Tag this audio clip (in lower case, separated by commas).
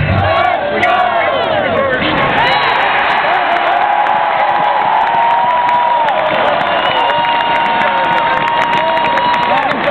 speech